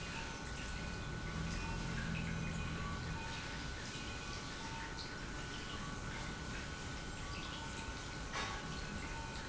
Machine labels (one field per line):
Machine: pump